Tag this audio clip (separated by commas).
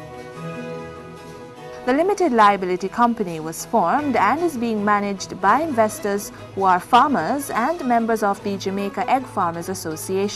Speech, Music